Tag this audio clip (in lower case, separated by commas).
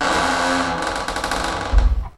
squeak